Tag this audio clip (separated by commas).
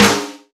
Drum, Snare drum, Music, Musical instrument, Percussion